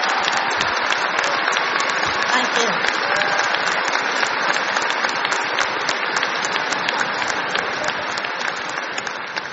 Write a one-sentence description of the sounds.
Some low or distant clapping noise followed by a woman’s voice